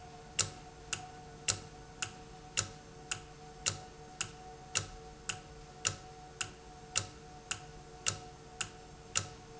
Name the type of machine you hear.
valve